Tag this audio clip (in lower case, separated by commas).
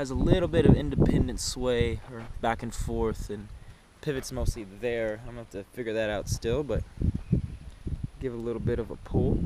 speech